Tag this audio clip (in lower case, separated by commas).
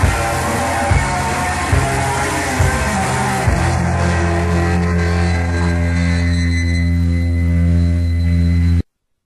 heavy metal, music